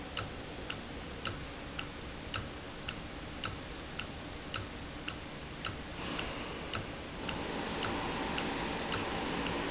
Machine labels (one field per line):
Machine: valve